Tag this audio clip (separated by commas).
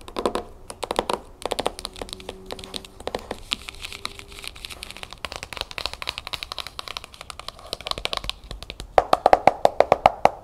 Scratching (performance technique)